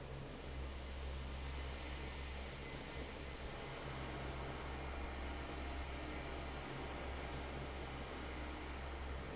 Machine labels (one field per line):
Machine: fan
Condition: normal